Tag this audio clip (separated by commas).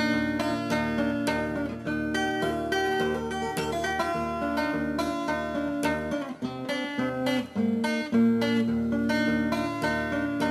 Music, Tender music